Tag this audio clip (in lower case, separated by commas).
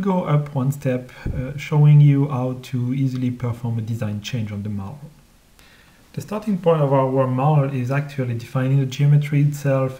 speech